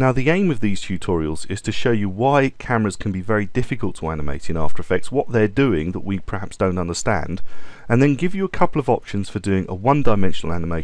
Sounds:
speech

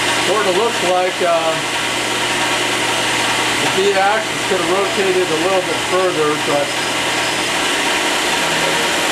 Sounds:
power tool, tools

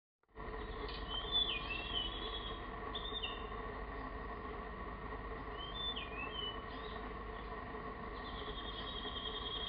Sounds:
bird

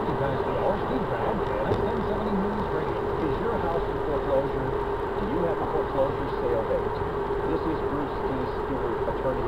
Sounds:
vehicle, car, speech

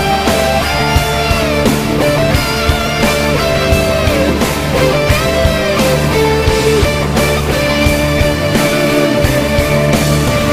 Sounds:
music

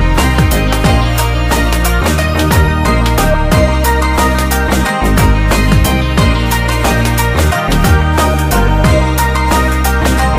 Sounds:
music

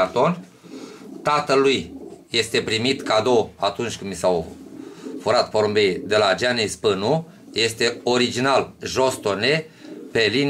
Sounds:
bird, speech, pigeon

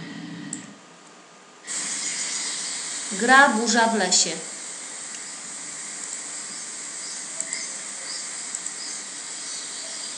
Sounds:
hiss

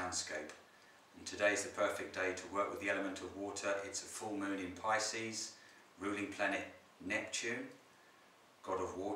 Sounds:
speech

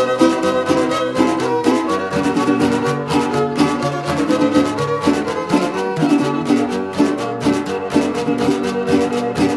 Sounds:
music, swing music

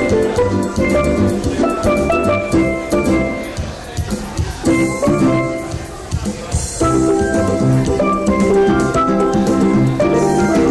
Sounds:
steelpan, speech, music

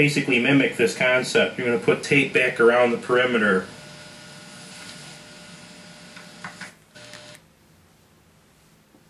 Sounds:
speech

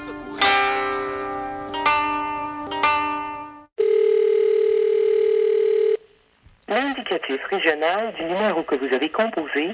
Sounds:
telephone bell ringing, music, speech

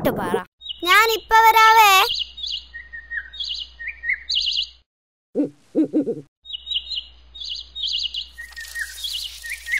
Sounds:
bird vocalization, bird, chirp

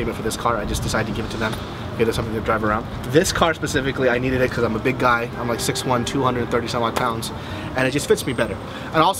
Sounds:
music, speech

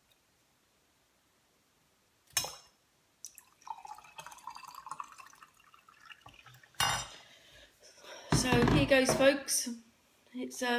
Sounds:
inside a small room, speech

